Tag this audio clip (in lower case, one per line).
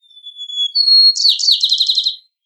bird
bird call
wild animals
animal